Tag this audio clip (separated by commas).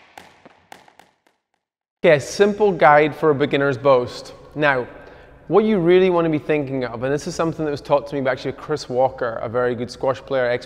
playing squash